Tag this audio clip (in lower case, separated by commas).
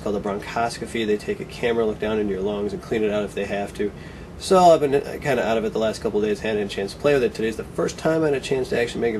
speech